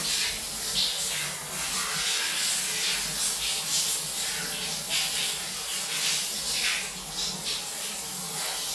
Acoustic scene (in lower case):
restroom